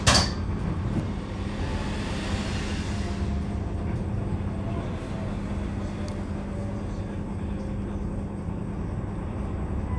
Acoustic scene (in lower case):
bus